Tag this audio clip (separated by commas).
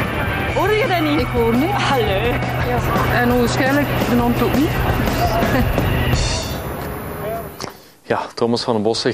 mosquito buzzing